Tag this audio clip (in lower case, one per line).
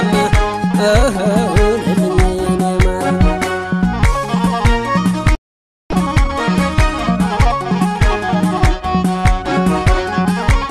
music